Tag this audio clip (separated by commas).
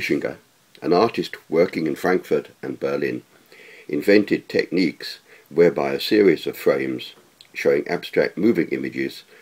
Speech